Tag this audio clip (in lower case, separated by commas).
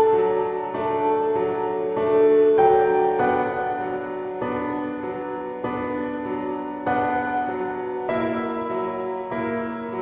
music